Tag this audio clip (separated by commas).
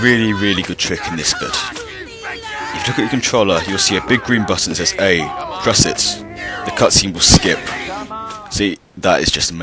Speech